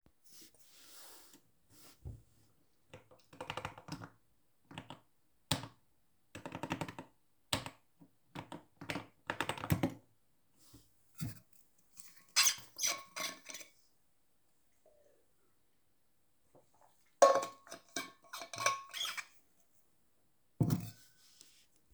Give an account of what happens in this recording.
Typed on the keyboard a bit, grabed the water botter and opend the lid and took a sip, and closed the lid